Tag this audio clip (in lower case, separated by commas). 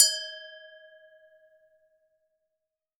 glass